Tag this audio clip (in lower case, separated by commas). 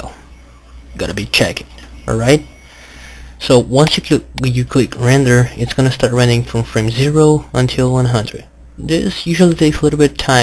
speech